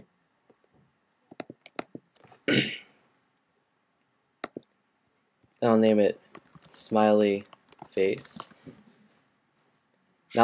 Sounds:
speech

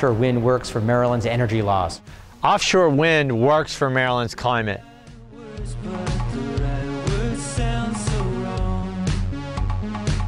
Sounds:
speech, music

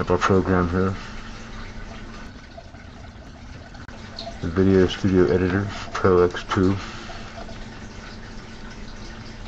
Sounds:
speech, inside a small room, drip

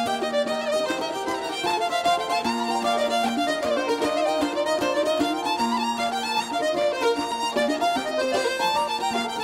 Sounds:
pizzicato, bowed string instrument, fiddle

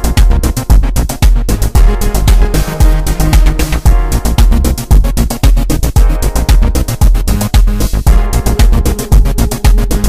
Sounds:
techno, music, electronic music

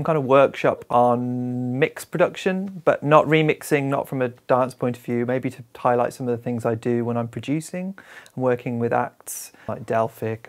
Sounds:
speech

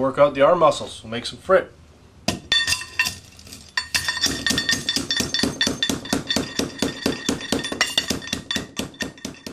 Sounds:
breaking, speech

